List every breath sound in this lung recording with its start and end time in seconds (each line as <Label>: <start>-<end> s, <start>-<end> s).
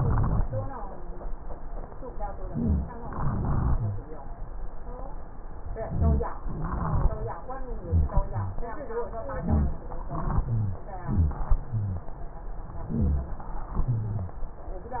Inhalation: 2.41-2.98 s, 5.88-6.34 s, 9.35-9.87 s, 12.86-13.40 s
Exhalation: 3.02-4.02 s, 6.45-7.29 s, 10.07-10.85 s, 13.77-14.50 s
Rhonchi: 2.41-2.98 s, 3.02-4.02 s, 5.88-6.34 s, 6.45-7.29 s, 7.85-8.16 s, 8.27-8.65 s, 9.35-9.87 s, 10.07-10.85 s, 11.06-11.46 s, 11.71-12.11 s, 12.86-13.40 s, 13.77-14.50 s
Crackles: 0.00-0.65 s